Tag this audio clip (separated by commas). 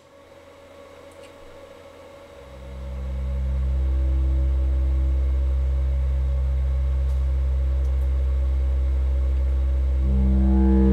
White noise